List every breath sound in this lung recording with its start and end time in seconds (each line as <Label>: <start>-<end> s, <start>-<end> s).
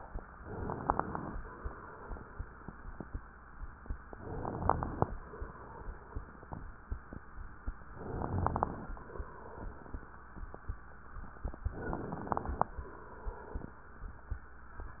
Inhalation: 0.41-1.36 s, 4.08-5.13 s, 7.93-8.92 s, 11.63-12.74 s
Exhalation: 1.36-3.17 s, 5.13-6.84 s, 8.92-10.31 s, 12.74-13.83 s
Crackles: 0.41-1.36 s, 4.08-5.13 s, 7.93-8.92 s, 11.63-12.74 s